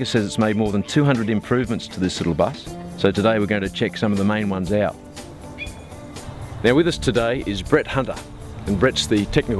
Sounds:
Speech, Music

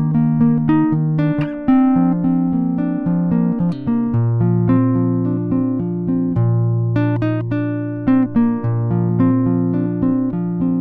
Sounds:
Guitar, Music, Strum, Musical instrument

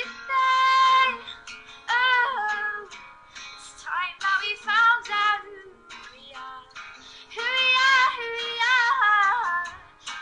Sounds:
Music, Female singing

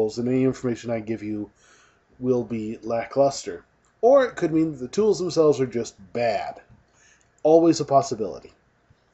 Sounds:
Speech

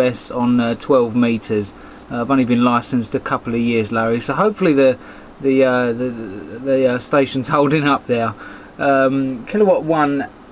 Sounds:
Speech

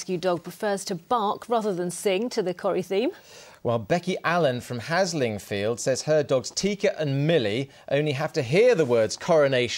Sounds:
Speech

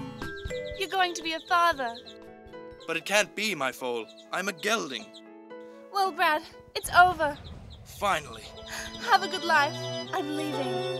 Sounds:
Animal, Speech, Music

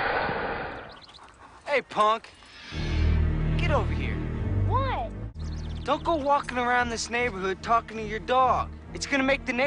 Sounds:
Speech, Music

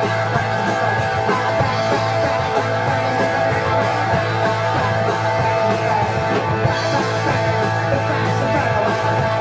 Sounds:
Rock and roll, Rock music, Music, Drum kit, Guitar, Musical instrument, Singing

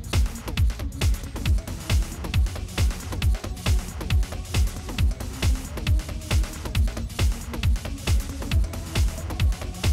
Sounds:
Techno, Music

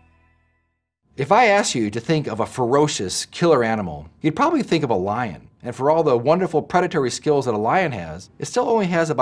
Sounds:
mosquito buzzing

